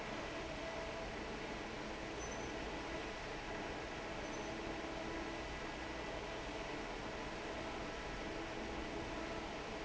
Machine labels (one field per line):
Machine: fan